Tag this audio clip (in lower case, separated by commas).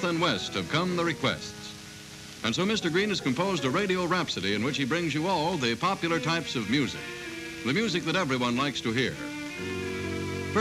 speech, music